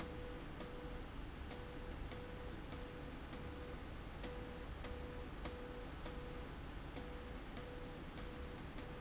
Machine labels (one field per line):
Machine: slide rail